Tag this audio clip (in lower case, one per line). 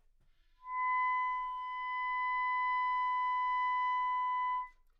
music
wind instrument
musical instrument